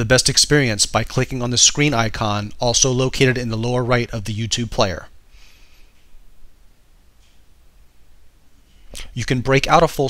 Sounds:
speech

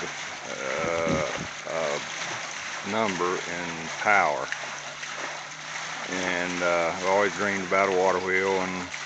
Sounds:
speech, dribble

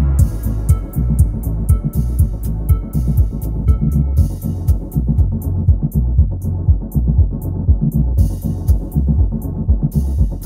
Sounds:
music, throbbing

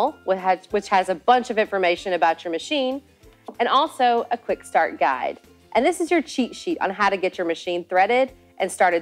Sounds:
music, speech

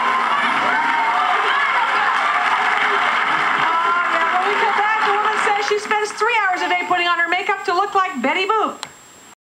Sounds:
inside a public space, speech

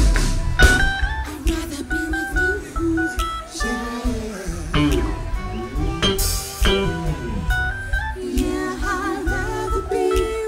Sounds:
music

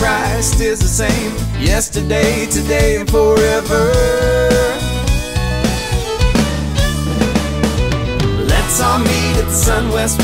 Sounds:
rhythm and blues, music, soul music

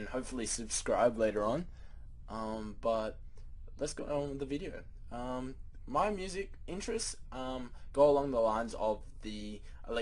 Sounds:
speech

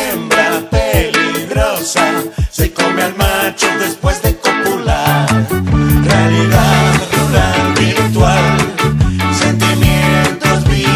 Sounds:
reggae, ska, music

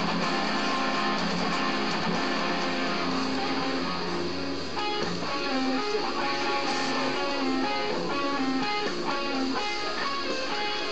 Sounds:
guitar, strum, music, musical instrument, acoustic guitar, plucked string instrument

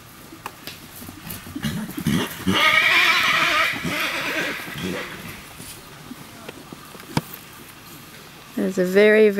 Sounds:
animal, speech, horse, outside, rural or natural

